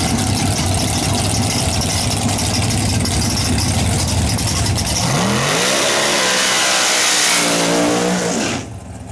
A engine is running and revving